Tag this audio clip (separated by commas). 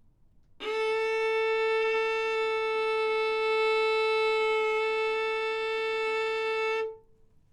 Musical instrument, Bowed string instrument, Music